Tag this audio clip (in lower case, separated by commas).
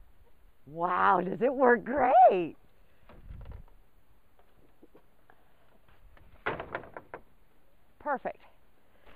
speech, wood